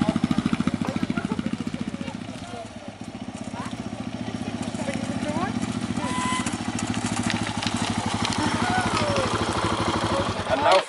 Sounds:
outside, rural or natural, vehicle, speech, motorcycle

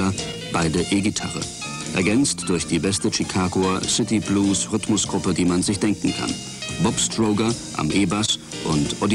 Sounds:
music, speech

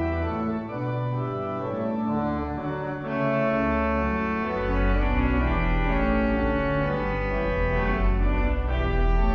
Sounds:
organ, hammond organ

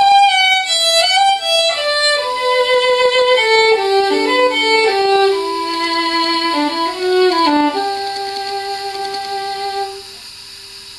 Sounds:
violin, musical instrument, music

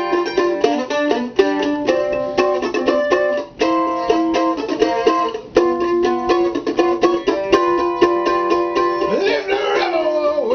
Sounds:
music

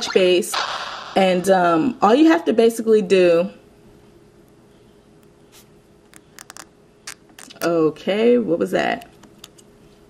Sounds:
speech

